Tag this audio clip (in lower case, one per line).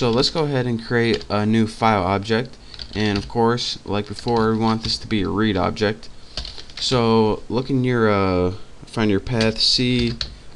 speech